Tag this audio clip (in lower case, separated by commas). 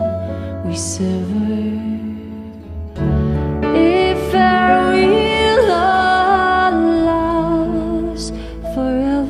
music, new-age music